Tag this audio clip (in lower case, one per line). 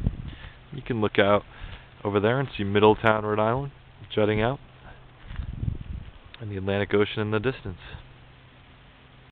speech